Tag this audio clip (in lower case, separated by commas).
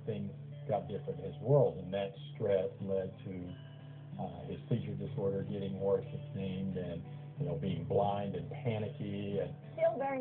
music, speech